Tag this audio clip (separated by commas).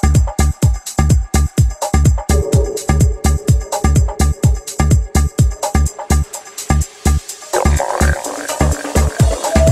Music